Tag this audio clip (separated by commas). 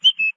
Bird vocalization, Animal, tweet, Wild animals, Bird